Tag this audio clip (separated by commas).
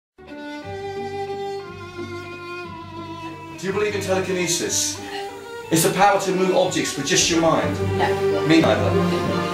Orchestra